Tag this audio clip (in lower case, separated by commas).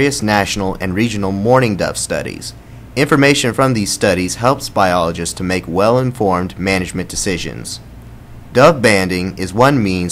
speech